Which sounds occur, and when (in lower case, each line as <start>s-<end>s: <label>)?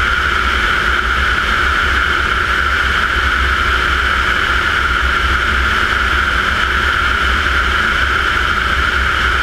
0.0s-9.4s: aircraft